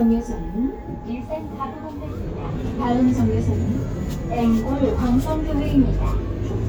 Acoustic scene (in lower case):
bus